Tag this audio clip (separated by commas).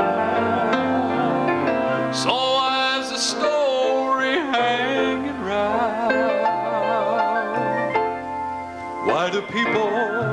Music, Male singing